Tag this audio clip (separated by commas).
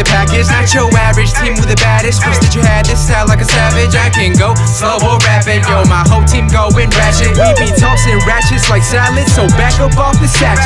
Music